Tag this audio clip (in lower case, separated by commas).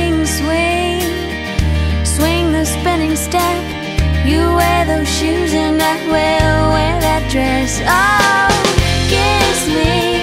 music, soul music